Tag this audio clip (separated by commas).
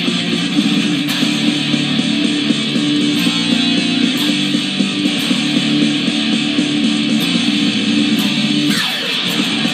Plucked string instrument, Music, Strum, Electric guitar, Musical instrument